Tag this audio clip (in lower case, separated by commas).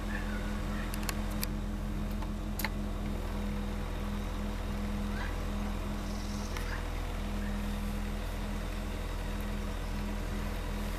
vehicle